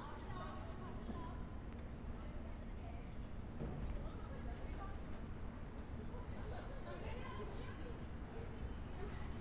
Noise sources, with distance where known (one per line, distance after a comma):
person or small group talking, far